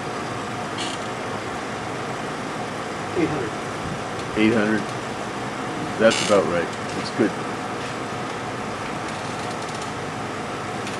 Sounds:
speech

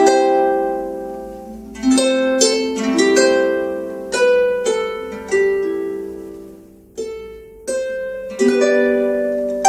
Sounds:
pizzicato, harp

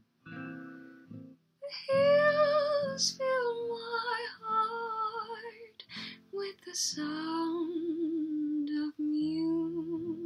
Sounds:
sad music, music

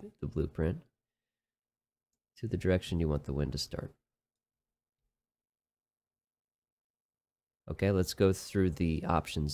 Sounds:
speech

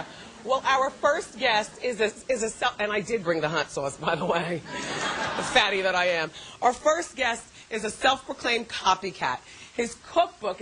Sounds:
speech

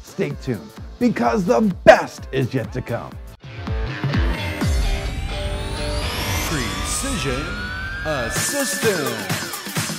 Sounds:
music, speech

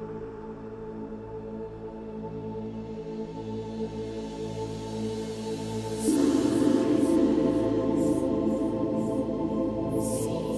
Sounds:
music, hiss

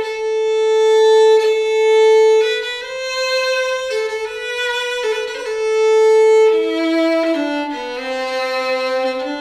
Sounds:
music, musical instrument, violin

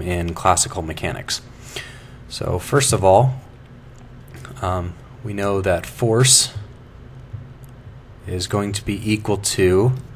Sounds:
speech

